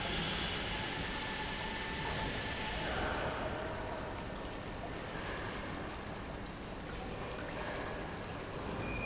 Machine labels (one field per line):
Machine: pump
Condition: normal